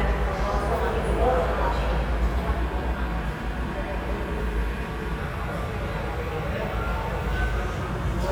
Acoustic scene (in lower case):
subway station